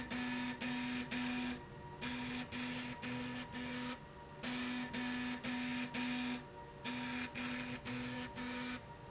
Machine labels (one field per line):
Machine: slide rail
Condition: abnormal